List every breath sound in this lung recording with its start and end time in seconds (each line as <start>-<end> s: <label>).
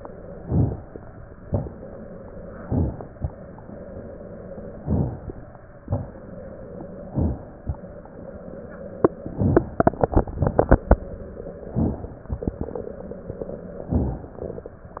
0.38-1.04 s: inhalation
1.43-2.19 s: exhalation
2.52-3.16 s: inhalation
4.82-5.47 s: inhalation
4.82-5.47 s: crackles
5.87-6.58 s: exhalation
7.05-7.63 s: inhalation
11.67-12.26 s: inhalation
12.22-13.86 s: crackles
13.85-14.38 s: inhalation